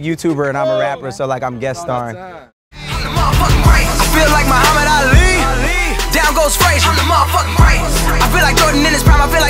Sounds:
rapping

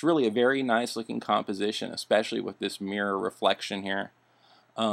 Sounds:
Speech

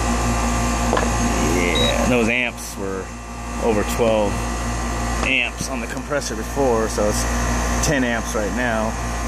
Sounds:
Speech, outside, urban or man-made

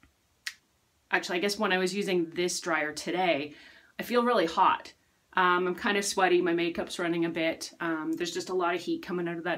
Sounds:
hair dryer drying

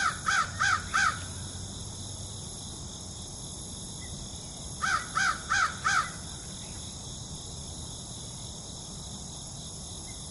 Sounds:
crow cawing

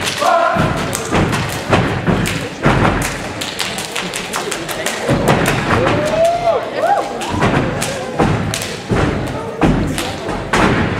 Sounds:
thud, Speech

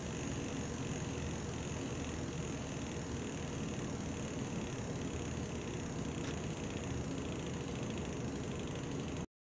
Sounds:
Bicycle, Vehicle

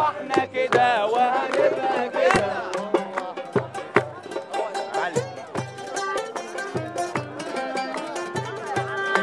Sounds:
Music

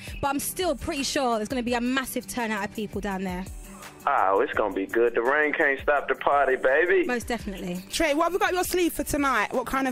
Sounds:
Music, Speech

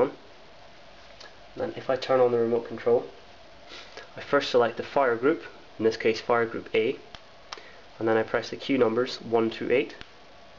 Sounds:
inside a small room, Speech

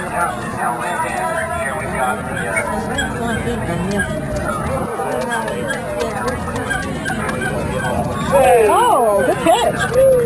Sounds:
Animal, pets, Dog, Speech

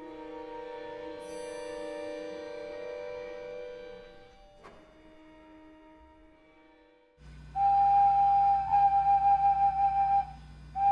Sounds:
Music

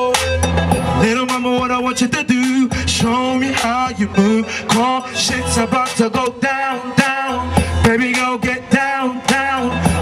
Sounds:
Music, Rhythm and blues

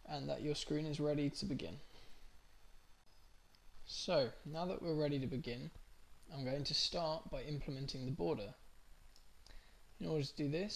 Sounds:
Speech

